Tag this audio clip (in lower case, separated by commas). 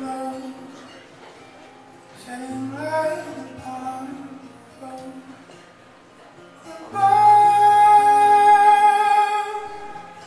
independent music, speech, music